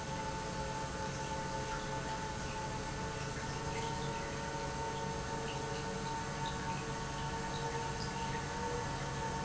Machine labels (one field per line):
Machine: pump